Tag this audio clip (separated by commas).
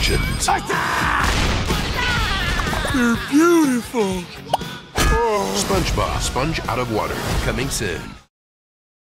Speech, Music